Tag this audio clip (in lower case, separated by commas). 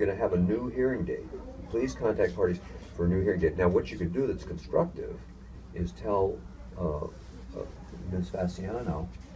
inside a small room, speech